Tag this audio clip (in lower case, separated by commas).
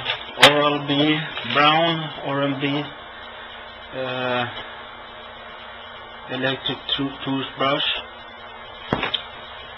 speech